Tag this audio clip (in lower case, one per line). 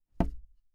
thump
tap